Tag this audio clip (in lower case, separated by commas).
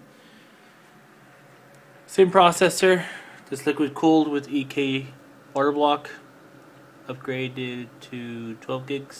speech